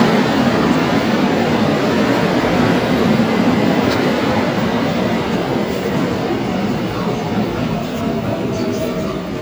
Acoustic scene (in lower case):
subway station